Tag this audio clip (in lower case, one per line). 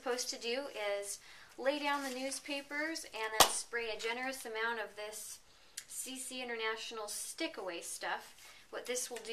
speech